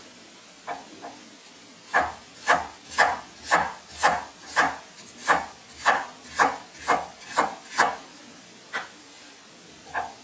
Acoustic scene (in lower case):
kitchen